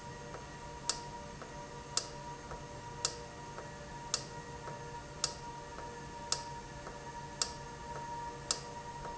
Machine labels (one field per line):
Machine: valve